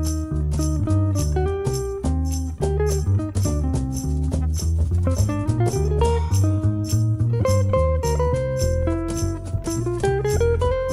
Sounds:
playing tambourine

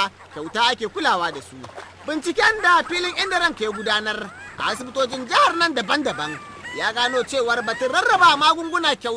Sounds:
Speech

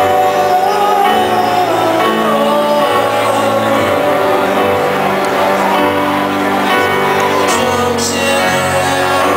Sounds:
Music, Crowd

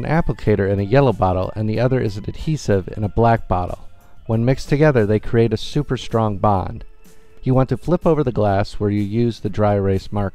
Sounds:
Music, Speech

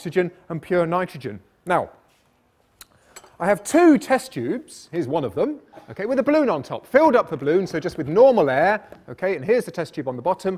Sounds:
Speech

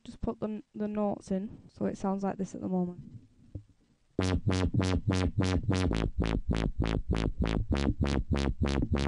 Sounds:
Electronic music, Music, Dubstep, Speech

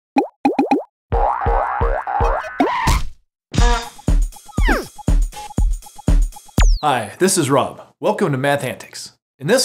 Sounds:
Music, Speech

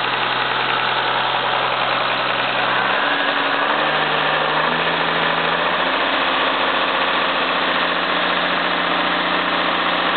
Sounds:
revving, Engine, Idling, Heavy engine (low frequency)

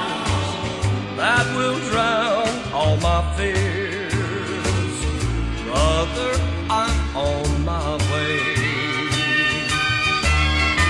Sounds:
Music

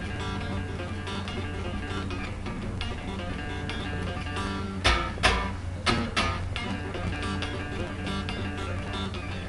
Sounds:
Musical instrument, Music, Plucked string instrument, Guitar

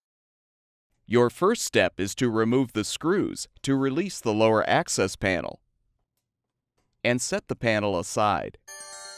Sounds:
Speech, Music

